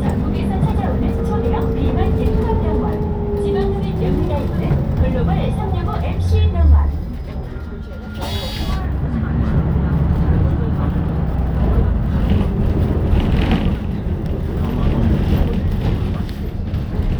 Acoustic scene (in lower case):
bus